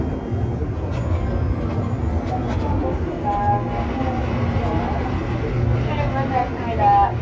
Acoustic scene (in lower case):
subway train